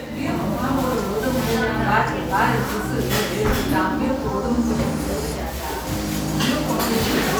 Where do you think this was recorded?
in a cafe